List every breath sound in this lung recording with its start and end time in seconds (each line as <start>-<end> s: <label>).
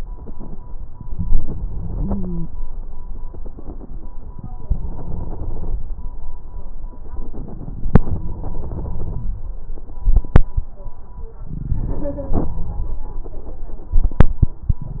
1.94-2.48 s: stridor
4.63-5.80 s: inhalation
8.05-9.66 s: inhalation
11.49-13.10 s: inhalation